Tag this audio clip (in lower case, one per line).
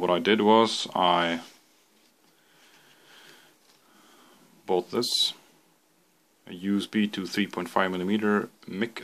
speech